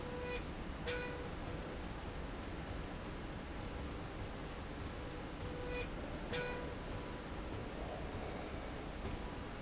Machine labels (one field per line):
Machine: slide rail